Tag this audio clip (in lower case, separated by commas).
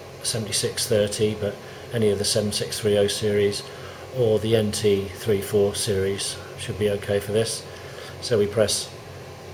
speech